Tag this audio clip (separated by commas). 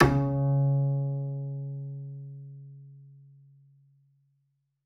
Musical instrument, Bowed string instrument, Music